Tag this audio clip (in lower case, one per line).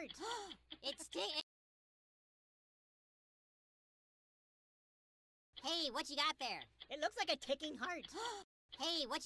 speech